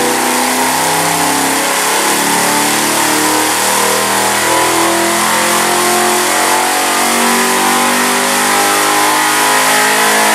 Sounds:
Engine

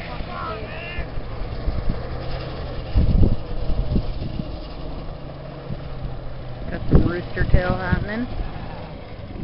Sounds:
Speech, Vehicle, Bus

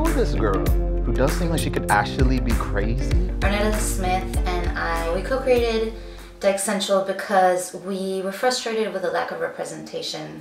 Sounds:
Speech, Music

